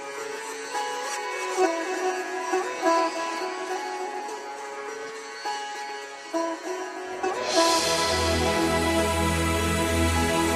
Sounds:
music

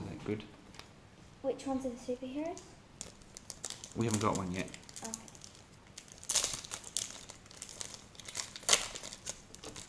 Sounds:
crinkling, speech, inside a small room

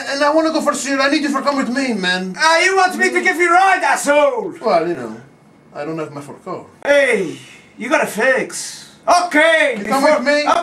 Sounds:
speech

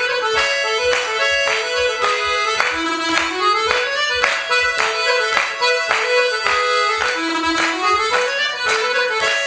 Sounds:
orchestra, music

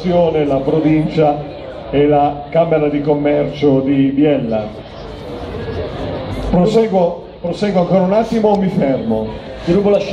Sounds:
speech

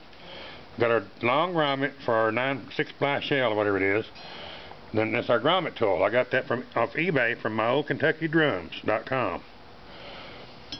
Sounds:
speech

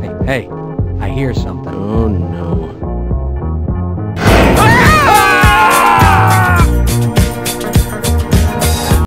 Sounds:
music, speech

